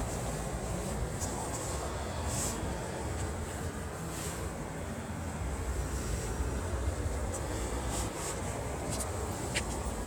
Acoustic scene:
residential area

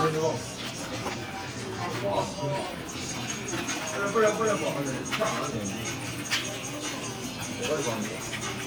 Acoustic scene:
crowded indoor space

